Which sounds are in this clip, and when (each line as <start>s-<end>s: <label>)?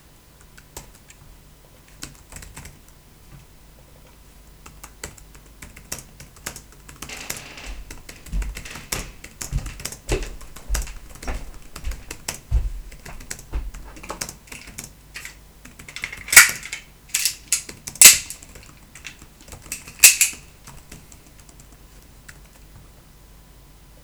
0.4s-22.6s: keyboard typing
6.9s-14.9s: footsteps